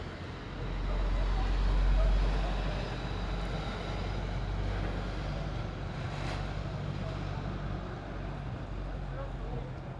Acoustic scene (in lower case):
residential area